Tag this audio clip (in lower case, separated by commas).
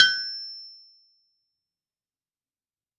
tools